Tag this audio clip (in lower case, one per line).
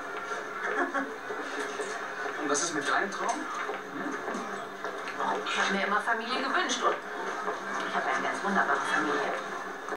speech